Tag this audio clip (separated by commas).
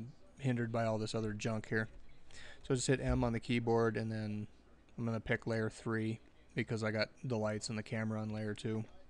Speech